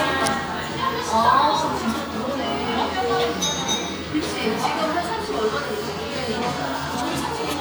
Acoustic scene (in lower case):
cafe